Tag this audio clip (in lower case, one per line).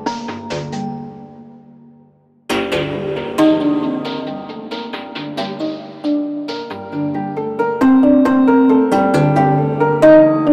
music